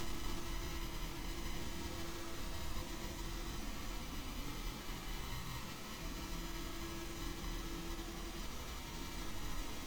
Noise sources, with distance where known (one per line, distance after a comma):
background noise